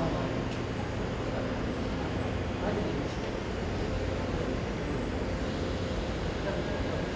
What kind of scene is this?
subway station